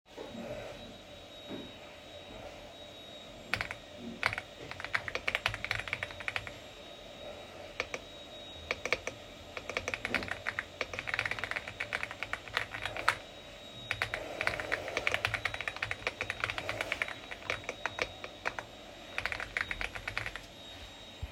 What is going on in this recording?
I'm in my room working while the vacuum cleaner is being used in a different room.